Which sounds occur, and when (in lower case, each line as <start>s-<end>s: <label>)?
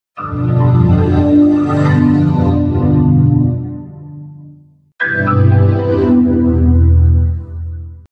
0.1s-4.9s: music
5.0s-8.0s: music